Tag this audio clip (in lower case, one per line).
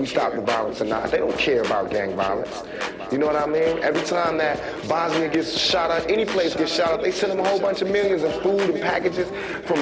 music